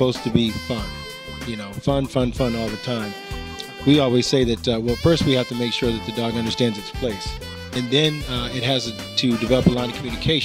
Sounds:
speech, music

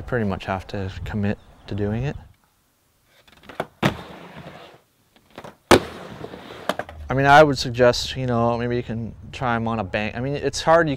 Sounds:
skateboard

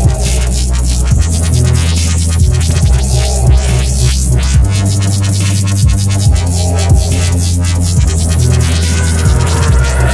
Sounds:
music, dubstep, electronic music

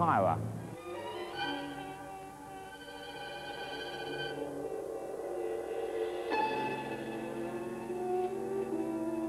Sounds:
speech, music

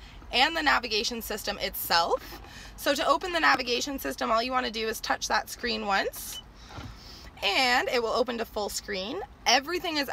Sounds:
speech

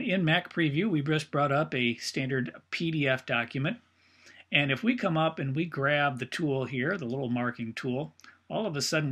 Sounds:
speech

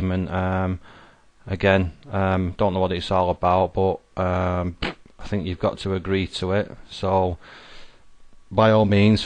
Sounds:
speech

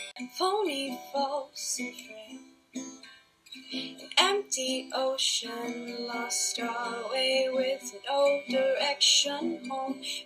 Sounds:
music, female singing

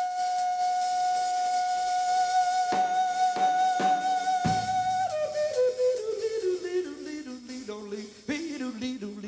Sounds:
music, singing, inside a large room or hall

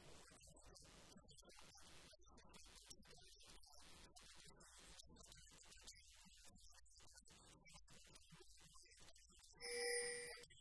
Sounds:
speech

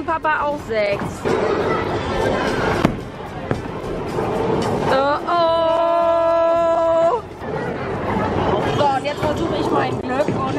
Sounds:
bowling impact

